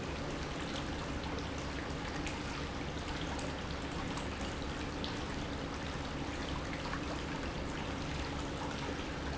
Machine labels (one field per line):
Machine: pump